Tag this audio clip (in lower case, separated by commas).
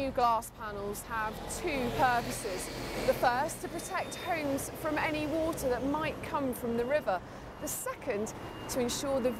speech